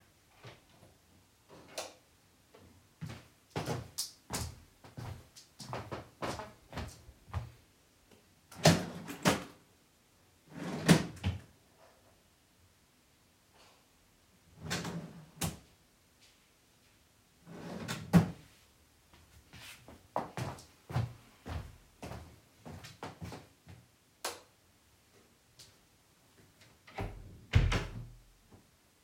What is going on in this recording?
I turn on the light, then walked across the living room. I open and close a drawer, then open and close another drawer. I walk across the room, turn off the light and close the door.